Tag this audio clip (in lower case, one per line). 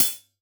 music
cymbal
musical instrument
percussion
hi-hat